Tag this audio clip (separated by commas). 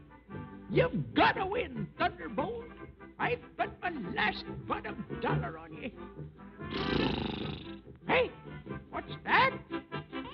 Music, Speech